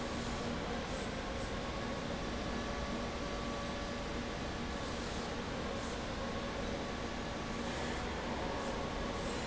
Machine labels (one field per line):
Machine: fan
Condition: abnormal